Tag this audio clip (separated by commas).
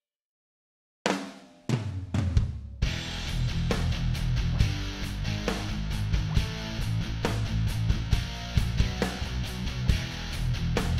Music